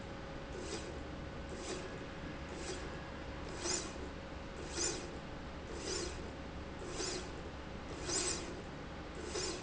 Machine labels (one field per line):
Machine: slide rail